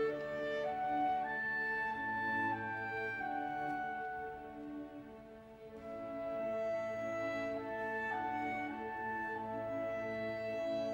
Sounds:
playing clarinet

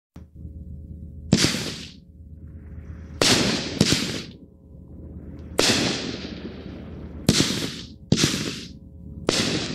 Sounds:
fireworks

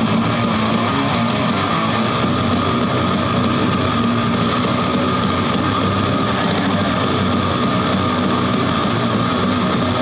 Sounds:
musical instrument, plucked string instrument, music, guitar

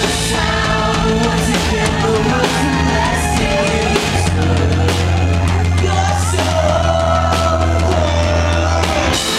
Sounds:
music

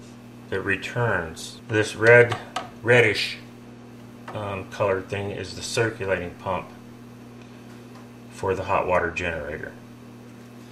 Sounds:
speech

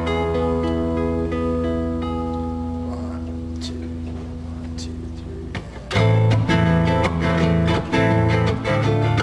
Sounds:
jazz, plucked string instrument, music, speech, guitar, acoustic guitar, musical instrument, strum

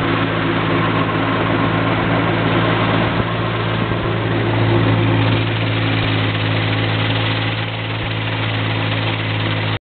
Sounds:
speedboat, vehicle, water vehicle, speedboat acceleration

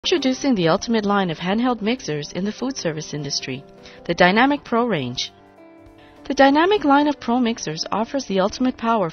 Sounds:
speech, music

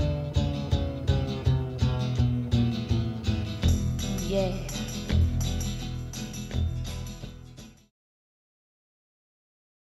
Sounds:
music

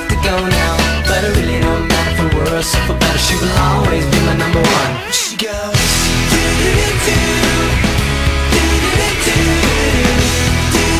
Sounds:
music

